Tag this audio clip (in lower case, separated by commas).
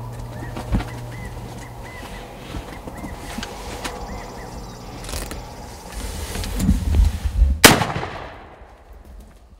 bird